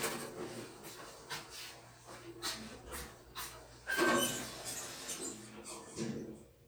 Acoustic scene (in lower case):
elevator